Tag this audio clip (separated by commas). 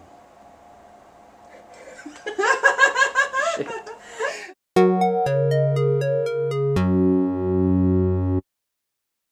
Speech, Music